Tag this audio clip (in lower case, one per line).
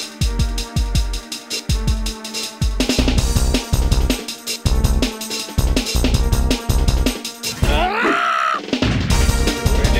music